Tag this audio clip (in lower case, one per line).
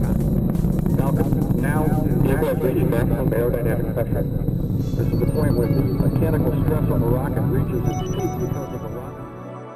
music
speech